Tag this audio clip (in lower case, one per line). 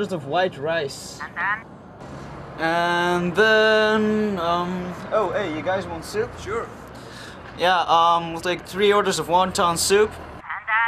speech